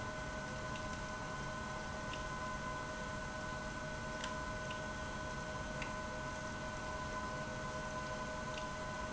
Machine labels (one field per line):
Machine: pump